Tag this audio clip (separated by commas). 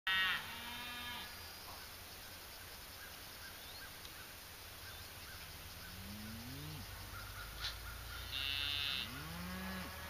cow lowing